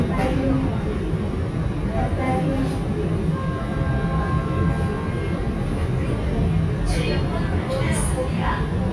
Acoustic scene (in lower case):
subway train